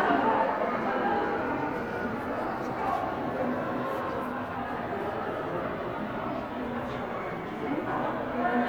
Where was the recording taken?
in a crowded indoor space